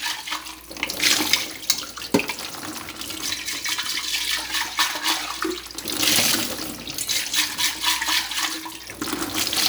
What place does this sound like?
kitchen